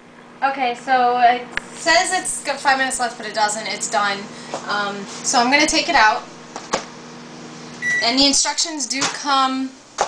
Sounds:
speech

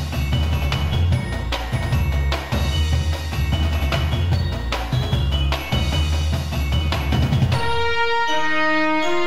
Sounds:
electronic music, music

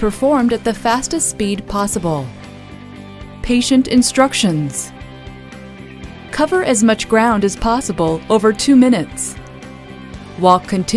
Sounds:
speech, music

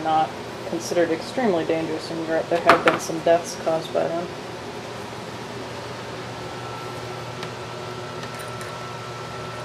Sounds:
speech, inside a small room

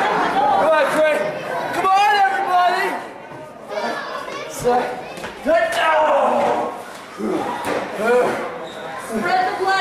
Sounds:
chatter, inside a large room or hall, speech

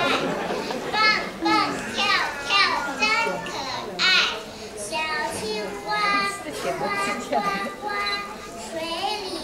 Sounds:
kid speaking, male speech, speech, female speech

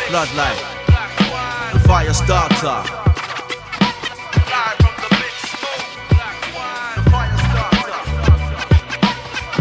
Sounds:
music

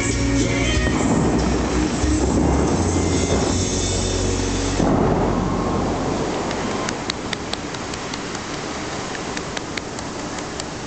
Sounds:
outside, urban or man-made, music

